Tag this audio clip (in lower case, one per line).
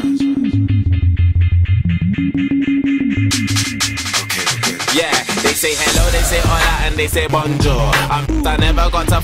drum and bass
music